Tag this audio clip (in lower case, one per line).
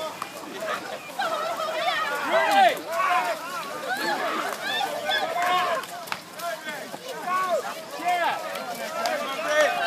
speech